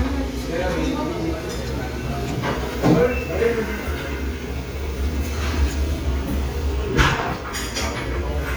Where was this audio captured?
in a restaurant